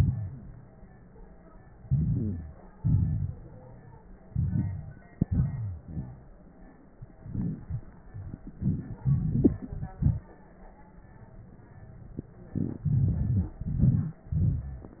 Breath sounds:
0.00-0.61 s: exhalation
0.00-0.61 s: crackles
1.81-2.59 s: wheeze
1.81-2.78 s: inhalation
2.76-3.42 s: exhalation
2.76-3.42 s: crackles
4.23-5.12 s: inhalation
4.23-5.12 s: crackles
5.15-6.48 s: exhalation
5.51-6.51 s: wheeze
7.00-8.03 s: crackles
7.02-8.05 s: inhalation
8.04-10.35 s: exhalation
8.04-10.35 s: crackles
12.53-12.86 s: inhalation
12.53-12.86 s: wheeze
12.84-13.57 s: exhalation
13.61-14.28 s: crackles
13.62-14.29 s: inhalation
14.29-15.00 s: exhalation
14.29-15.00 s: crackles

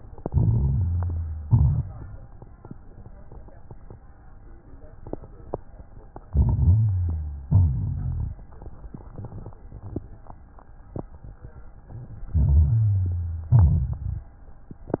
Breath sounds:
0.21-1.39 s: inhalation
0.21-1.39 s: crackles
1.42-1.94 s: exhalation
1.42-1.94 s: crackles
6.26-7.44 s: inhalation
6.26-7.44 s: crackles
7.48-8.45 s: exhalation
7.48-8.45 s: crackles
12.29-13.47 s: inhalation
12.29-13.47 s: crackles
13.57-14.46 s: exhalation
13.57-14.46 s: crackles

